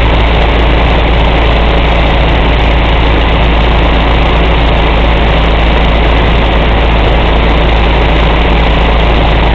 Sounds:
Aircraft, Vehicle

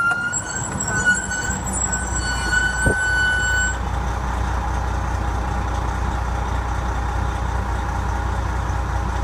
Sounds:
Engine, Idling, vroom, Vehicle

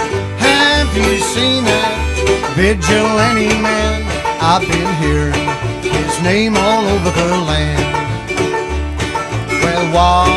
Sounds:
Music

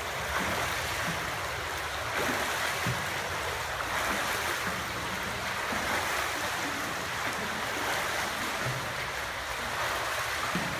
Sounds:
swimming

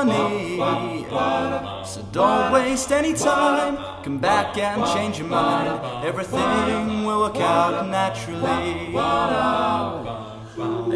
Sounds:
Choir

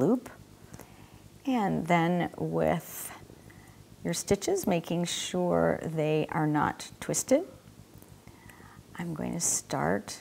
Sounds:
Speech

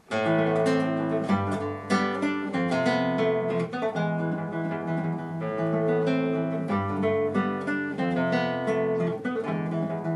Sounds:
Acoustic guitar, Guitar, Music, playing acoustic guitar, Plucked string instrument, Musical instrument, Strum

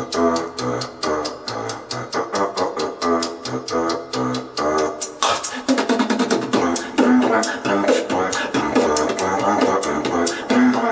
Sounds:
beat boxing

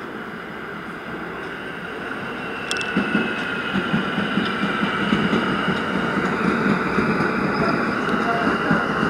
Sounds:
Train, Rail transport, Vehicle

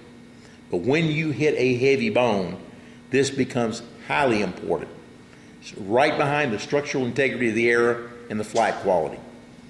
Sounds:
Speech

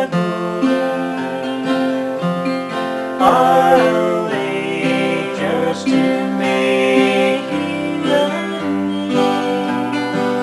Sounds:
Music, Tender music

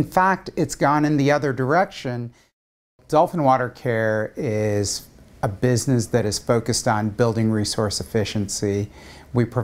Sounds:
Speech

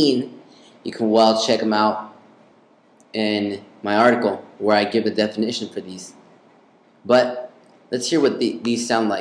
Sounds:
Speech

